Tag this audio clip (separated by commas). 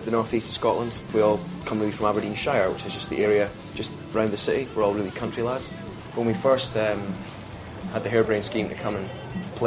Music, Speech